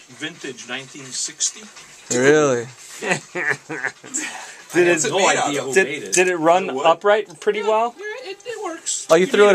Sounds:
Speech

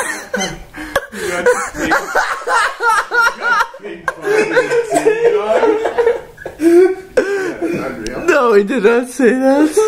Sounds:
Speech

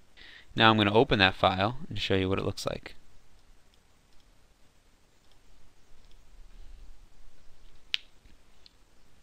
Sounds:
Clicking

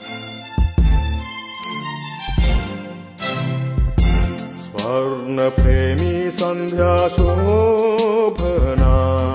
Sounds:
Music

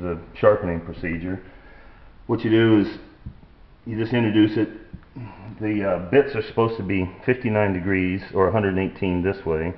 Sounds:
Speech, inside a small room

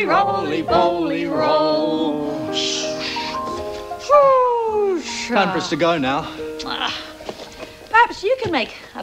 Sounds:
Music, Speech

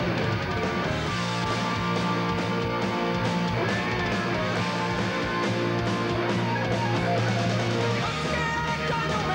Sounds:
Music

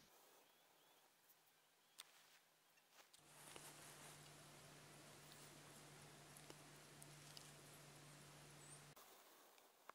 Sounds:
elk bugling

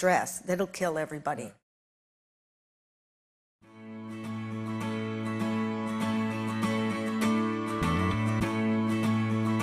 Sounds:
Speech, Music

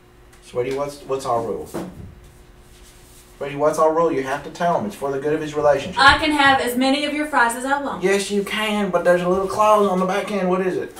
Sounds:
Speech

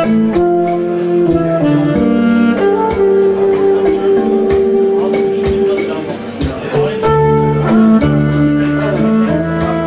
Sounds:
Wind instrument, inside a public space, Saxophone, Speech, playing saxophone, Musical instrument, Music

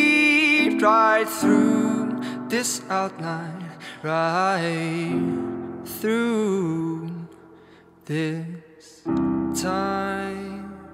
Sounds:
Soul music, Music

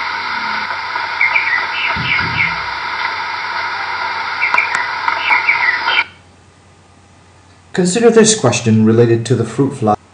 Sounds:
Speech, outside, rural or natural

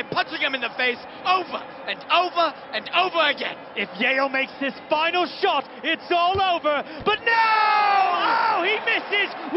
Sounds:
playing volleyball

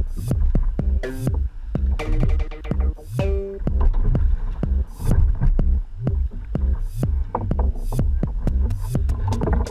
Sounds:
kayak, Water vehicle, Vehicle, Music

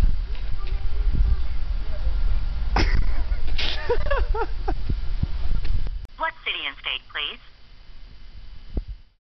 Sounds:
Speech

